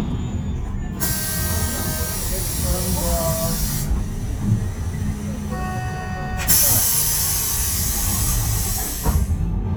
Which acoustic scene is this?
bus